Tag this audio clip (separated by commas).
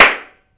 Hands, Clapping